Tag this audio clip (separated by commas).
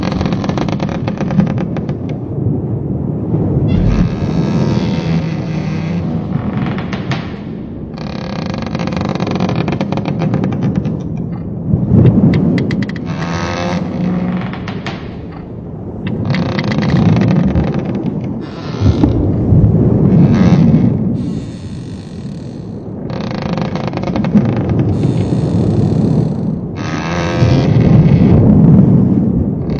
Water vehicle, Vehicle